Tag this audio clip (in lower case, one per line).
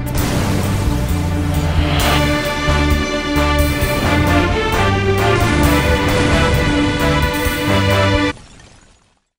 music